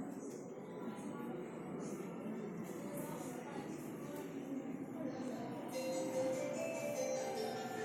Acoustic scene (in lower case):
subway station